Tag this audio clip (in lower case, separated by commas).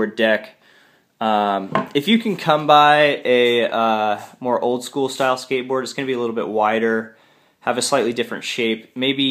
speech